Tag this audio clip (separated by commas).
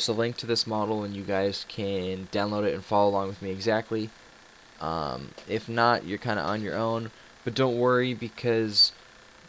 Speech